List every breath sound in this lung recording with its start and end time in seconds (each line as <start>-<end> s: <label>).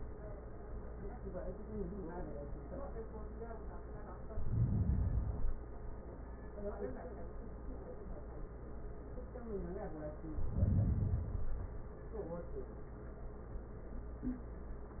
4.21-5.30 s: inhalation
5.27-6.48 s: exhalation
10.36-11.29 s: inhalation
11.32-12.75 s: exhalation